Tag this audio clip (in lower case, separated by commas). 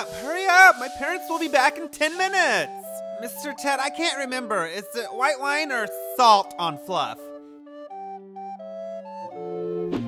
inside a small room, speech, music